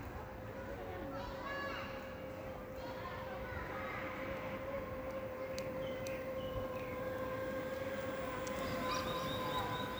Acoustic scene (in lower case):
park